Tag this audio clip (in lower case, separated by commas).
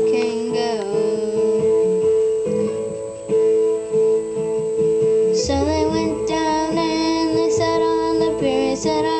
music, child singing